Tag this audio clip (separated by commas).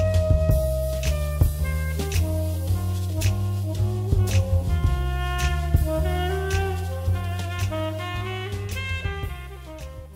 Music